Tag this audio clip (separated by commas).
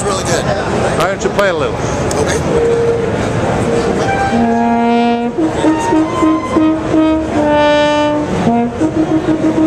Music, Speech